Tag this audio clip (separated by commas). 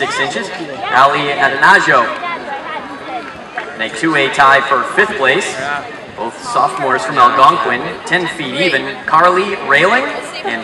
Speech